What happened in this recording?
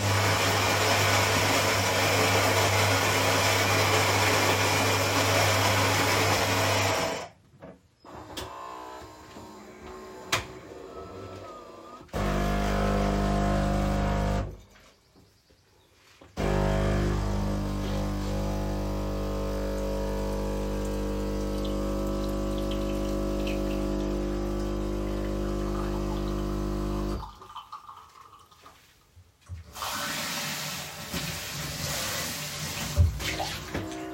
I started the coffee_machine and after some time of waiting I additionally turned on the water to clean but stopped it afterwards.